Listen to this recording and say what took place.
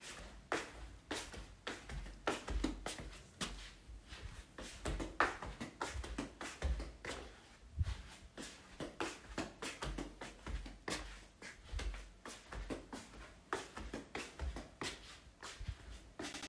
I walked slowly through the bedroom while holding the phone so that the sound of footsteps could be recorded.